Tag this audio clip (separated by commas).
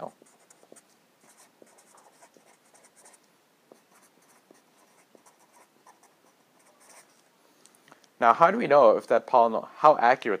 Writing